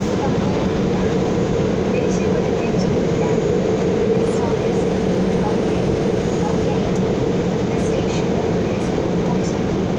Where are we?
on a subway train